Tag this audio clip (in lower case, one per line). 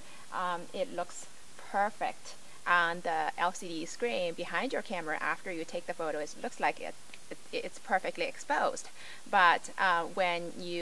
speech